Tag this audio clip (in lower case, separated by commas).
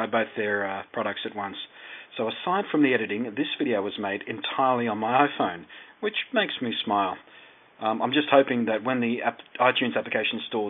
speech